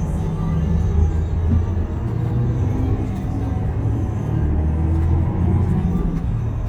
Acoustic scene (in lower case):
bus